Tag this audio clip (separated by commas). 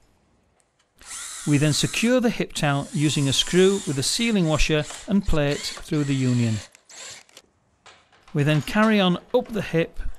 inside a small room, Speech